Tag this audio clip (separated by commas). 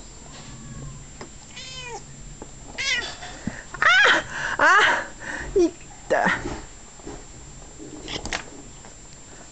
pets, Animal, Cat